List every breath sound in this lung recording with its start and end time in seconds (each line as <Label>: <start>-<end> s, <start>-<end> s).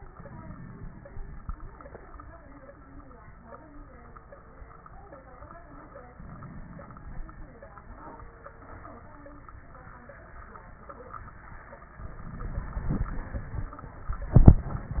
Inhalation: 0.09-1.07 s, 6.13-7.59 s, 11.99-13.71 s
Crackles: 0.09-1.07 s, 6.13-7.59 s, 11.99-13.71 s